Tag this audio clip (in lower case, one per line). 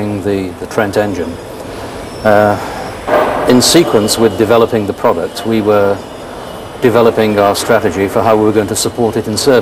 speech